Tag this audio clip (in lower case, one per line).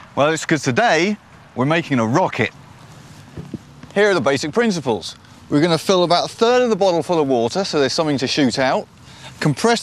speech